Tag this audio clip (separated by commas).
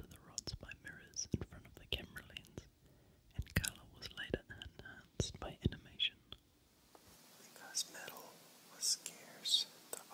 Speech